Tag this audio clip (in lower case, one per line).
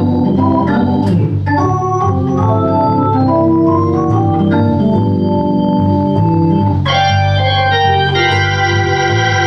electronic organ
organ